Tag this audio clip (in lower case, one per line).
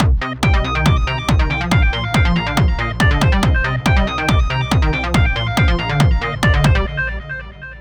music
percussion
drum kit
musical instrument